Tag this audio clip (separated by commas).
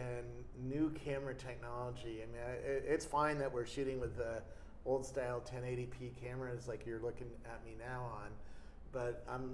Speech